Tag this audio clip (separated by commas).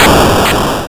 Explosion